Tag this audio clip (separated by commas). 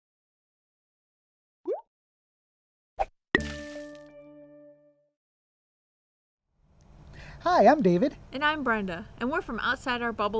Music, Speech, Plop